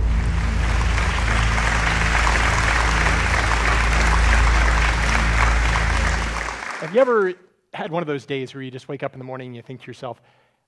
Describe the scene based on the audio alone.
A crowd applauds followed by a man performing a speech